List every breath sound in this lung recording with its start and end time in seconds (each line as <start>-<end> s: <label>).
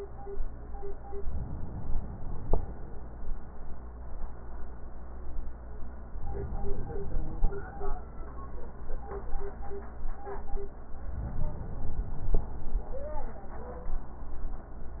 0.98-2.48 s: inhalation
6.14-7.64 s: inhalation
10.88-12.38 s: inhalation